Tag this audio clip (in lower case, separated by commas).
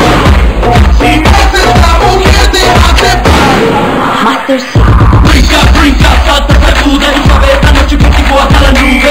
music, bang